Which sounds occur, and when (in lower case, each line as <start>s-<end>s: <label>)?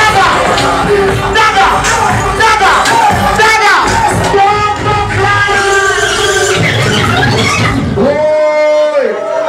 0.0s-0.3s: male speech
0.0s-9.4s: crowd
0.0s-9.4s: music
0.4s-1.3s: cheering
1.3s-1.7s: male speech
1.8s-2.3s: cheering
2.3s-2.7s: male speech
2.9s-3.5s: cheering
3.3s-3.8s: male speech
3.8s-4.4s: cheering
4.3s-6.2s: male speech
8.0s-9.4s: male speech
8.9s-9.4s: cheering